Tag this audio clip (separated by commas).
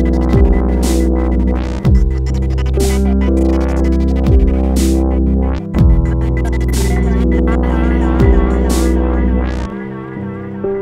playing synthesizer, Music, Synthesizer